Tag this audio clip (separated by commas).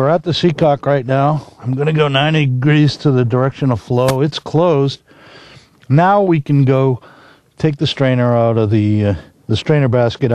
Speech